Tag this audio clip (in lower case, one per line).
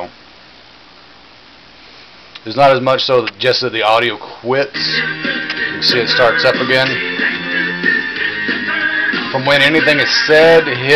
music
speech